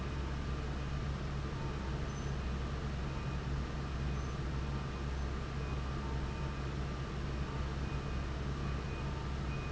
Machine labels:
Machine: fan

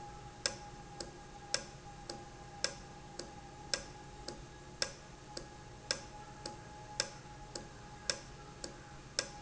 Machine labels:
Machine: valve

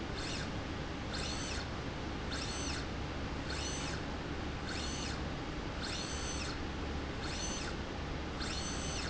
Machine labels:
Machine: slide rail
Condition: normal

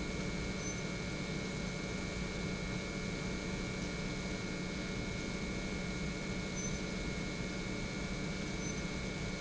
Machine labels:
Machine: pump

